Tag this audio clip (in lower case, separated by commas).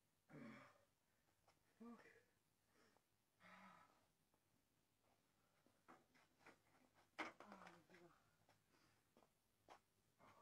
silence